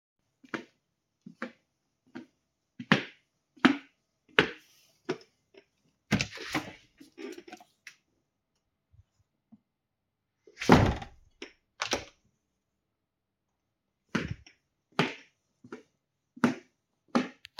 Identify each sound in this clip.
footsteps, window